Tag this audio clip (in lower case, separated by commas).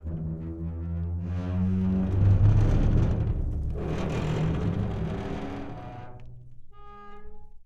squeak